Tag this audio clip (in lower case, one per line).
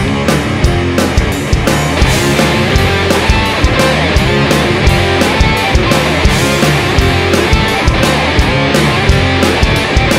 music
punk rock